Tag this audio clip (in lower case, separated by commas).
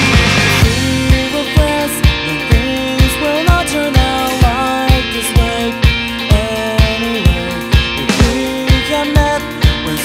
music